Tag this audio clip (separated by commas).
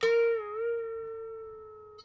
Harp, Music, Musical instrument